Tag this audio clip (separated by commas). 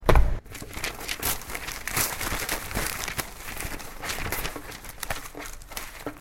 Tearing